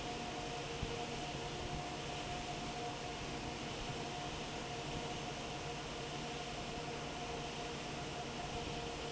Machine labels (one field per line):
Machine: fan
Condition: normal